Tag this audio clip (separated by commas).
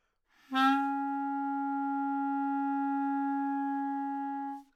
woodwind instrument, Music, Musical instrument